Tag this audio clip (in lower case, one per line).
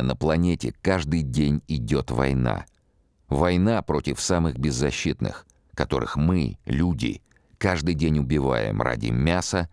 speech